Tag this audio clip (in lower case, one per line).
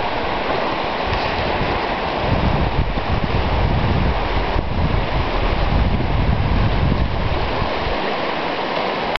vehicle
water vehicle